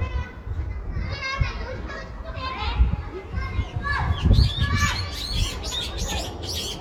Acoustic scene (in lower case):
residential area